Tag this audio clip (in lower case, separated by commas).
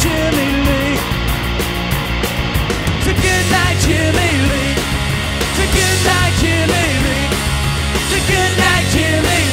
music, independent music